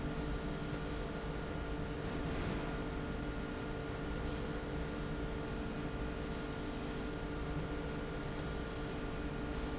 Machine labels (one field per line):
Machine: slide rail